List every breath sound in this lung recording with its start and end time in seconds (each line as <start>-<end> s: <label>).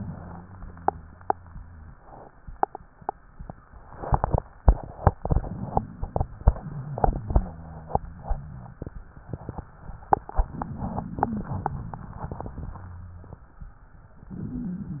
0.00-1.98 s: rhonchi